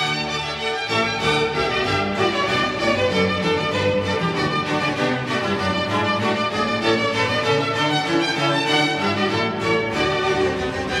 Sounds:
keyboard (musical)
piano

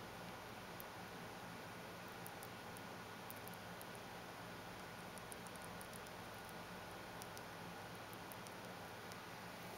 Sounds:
mouse

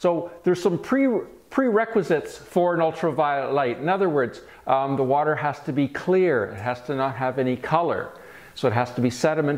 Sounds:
speech

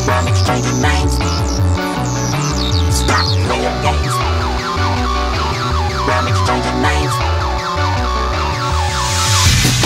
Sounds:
music

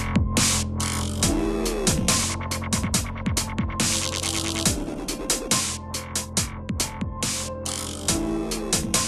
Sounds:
electronic music
music
dubstep

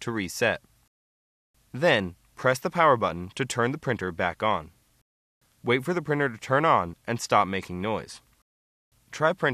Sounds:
speech

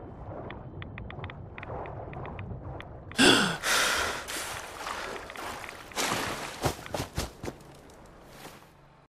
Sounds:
gurgling

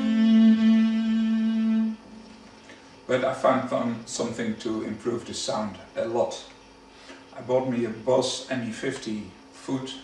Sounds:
speech
music

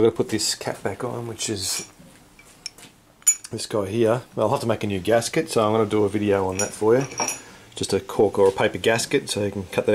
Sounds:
speech

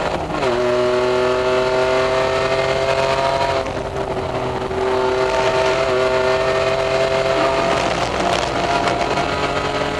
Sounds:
car
vehicle

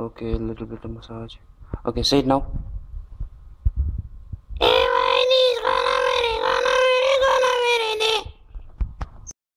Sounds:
speech

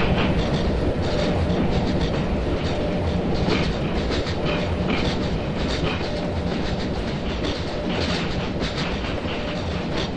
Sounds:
railroad car
train
vehicle

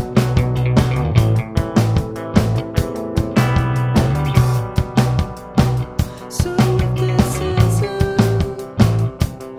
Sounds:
music
exciting music

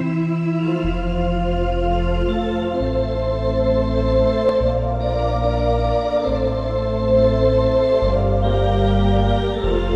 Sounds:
playing electronic organ

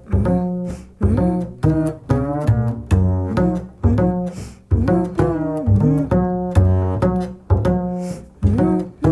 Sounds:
playing double bass

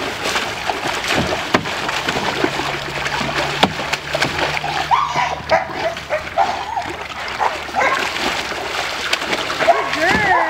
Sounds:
gurgling
speech

